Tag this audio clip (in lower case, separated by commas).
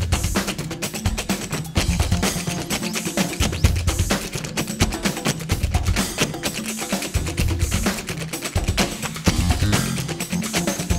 tap, music